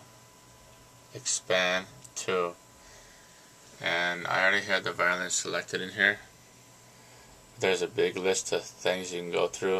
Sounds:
speech

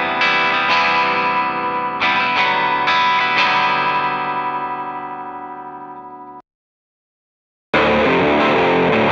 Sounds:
musical instrument, music, guitar, plucked string instrument

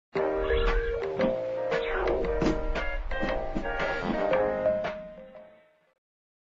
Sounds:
music

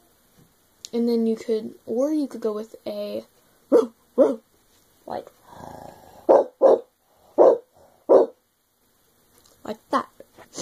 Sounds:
speech, bark

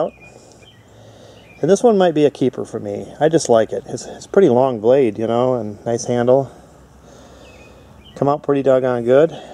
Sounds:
speech

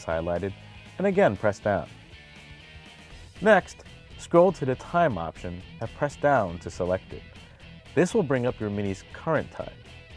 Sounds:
music, speech

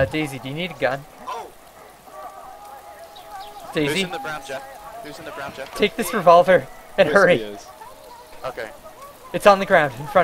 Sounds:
inside a large room or hall, speech

